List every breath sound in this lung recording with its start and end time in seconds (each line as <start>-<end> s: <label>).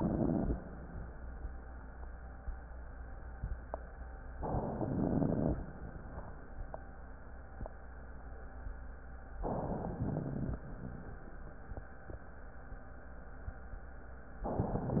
4.35-4.92 s: inhalation
4.92-5.57 s: exhalation
4.92-5.57 s: crackles
9.41-9.99 s: inhalation
10.01-10.59 s: exhalation
10.01-10.59 s: crackles